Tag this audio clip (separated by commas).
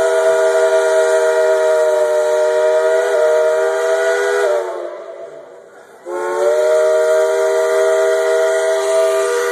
Steam whistle